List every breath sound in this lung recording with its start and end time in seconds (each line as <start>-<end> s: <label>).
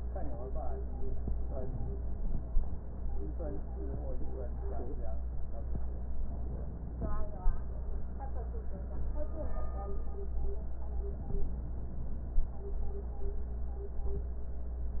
6.21-7.53 s: inhalation
11.05-12.37 s: inhalation